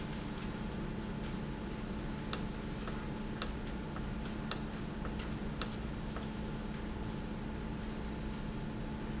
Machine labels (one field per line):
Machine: valve